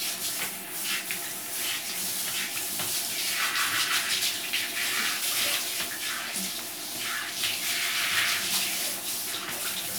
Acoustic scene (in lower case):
restroom